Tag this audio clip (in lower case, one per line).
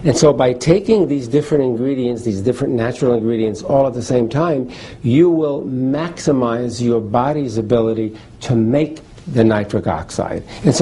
speech